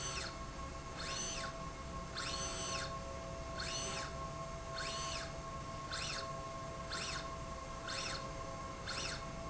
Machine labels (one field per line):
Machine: slide rail